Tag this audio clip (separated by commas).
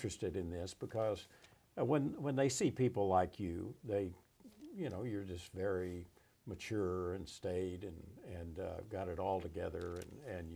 Speech